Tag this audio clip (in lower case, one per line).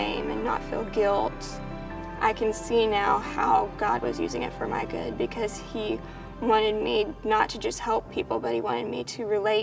music
speech
inside a large room or hall